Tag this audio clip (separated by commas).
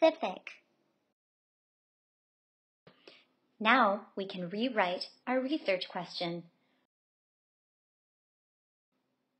Speech